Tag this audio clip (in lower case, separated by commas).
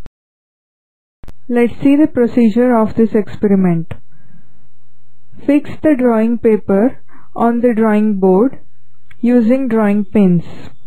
speech